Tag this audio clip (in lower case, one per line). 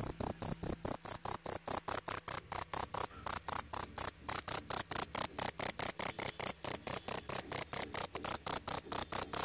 cricket chirping